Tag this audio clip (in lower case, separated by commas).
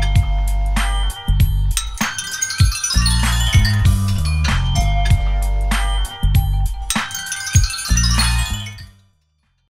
music